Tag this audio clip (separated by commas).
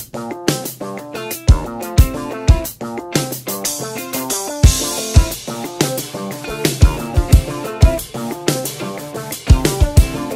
Music